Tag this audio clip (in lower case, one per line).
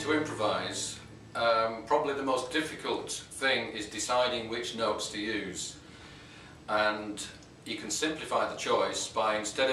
speech